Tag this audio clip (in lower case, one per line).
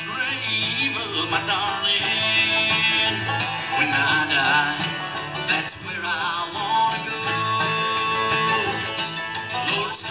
music